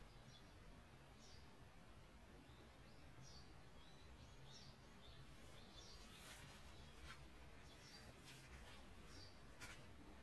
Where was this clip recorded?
in a park